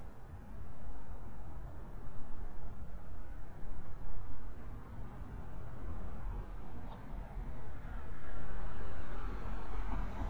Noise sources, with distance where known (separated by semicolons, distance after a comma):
medium-sounding engine, far